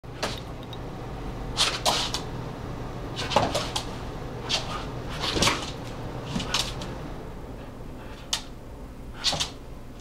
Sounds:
Dog, Animal, pets, inside a small room

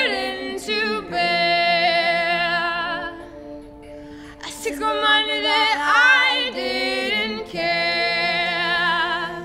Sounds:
Music

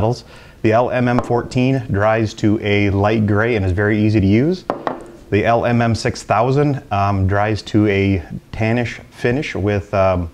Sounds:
Speech

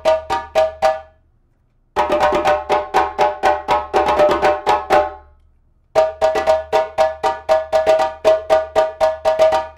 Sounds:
playing djembe

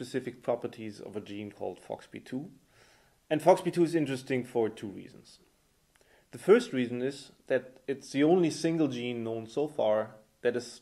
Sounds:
Speech

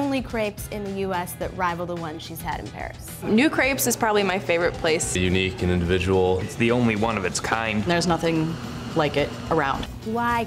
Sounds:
Speech, Music

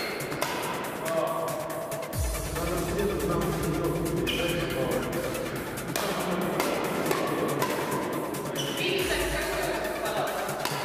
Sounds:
playing badminton

